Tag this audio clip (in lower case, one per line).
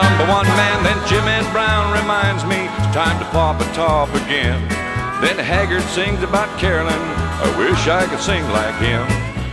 male singing
music
country